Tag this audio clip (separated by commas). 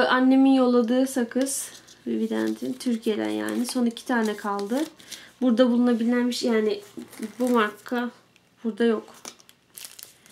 Speech, inside a small room